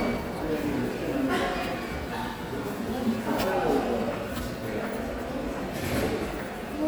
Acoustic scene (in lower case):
subway station